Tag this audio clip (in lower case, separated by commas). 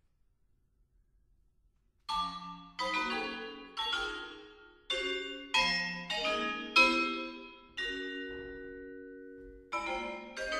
music, musical instrument, marimba, vibraphone